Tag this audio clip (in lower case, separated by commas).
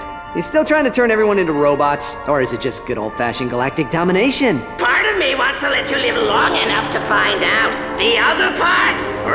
music, speech